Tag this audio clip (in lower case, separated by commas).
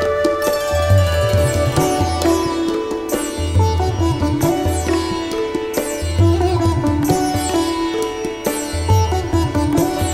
music, background music